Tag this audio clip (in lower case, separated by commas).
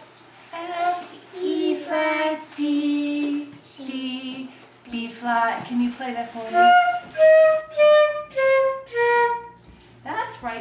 speech, flute, music